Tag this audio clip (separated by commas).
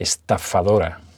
Male speech, Speech, Human voice